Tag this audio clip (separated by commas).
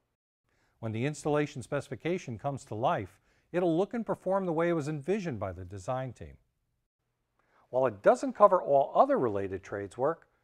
Speech